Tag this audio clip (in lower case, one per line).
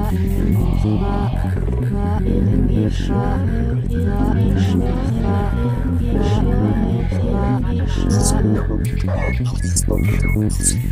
music
ambient music
song